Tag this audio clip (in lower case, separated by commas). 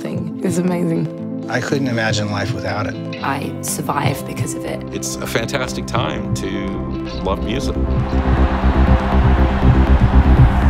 music, speech